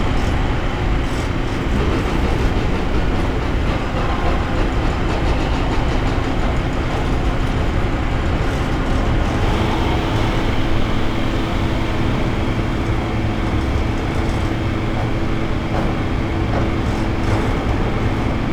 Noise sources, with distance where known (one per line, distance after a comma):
large-sounding engine